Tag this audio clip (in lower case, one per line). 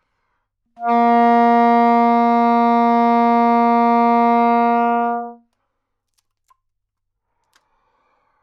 music
musical instrument
woodwind instrument